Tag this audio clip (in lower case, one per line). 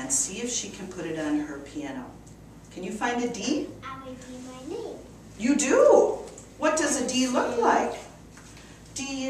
speech